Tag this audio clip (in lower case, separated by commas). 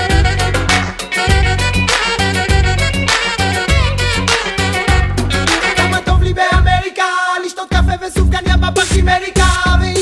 music, exciting music